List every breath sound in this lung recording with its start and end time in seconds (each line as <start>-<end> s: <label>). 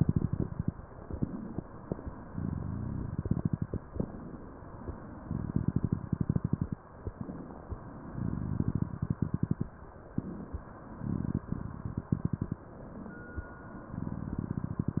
0.00-0.60 s: exhalation
0.00-0.60 s: crackles
0.94-2.07 s: inhalation
2.33-3.76 s: exhalation
2.33-3.76 s: crackles
3.86-4.98 s: inhalation
5.23-6.77 s: exhalation
5.23-6.77 s: crackles
6.98-8.10 s: inhalation
8.12-9.67 s: exhalation
8.12-9.67 s: crackles
10.09-10.90 s: inhalation
11.02-12.56 s: exhalation
11.02-12.56 s: crackles
12.75-13.81 s: inhalation
14.02-15.00 s: exhalation
14.02-15.00 s: crackles